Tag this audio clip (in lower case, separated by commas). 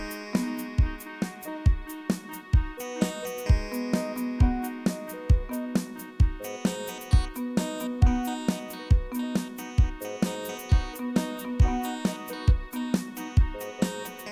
musical instrument, music, keyboard (musical)